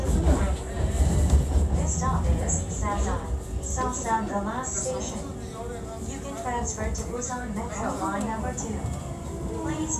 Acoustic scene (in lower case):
subway train